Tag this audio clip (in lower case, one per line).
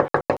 door
knock
home sounds